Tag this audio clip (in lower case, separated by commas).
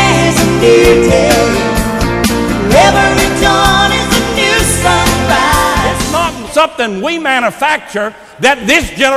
speech, music, female singing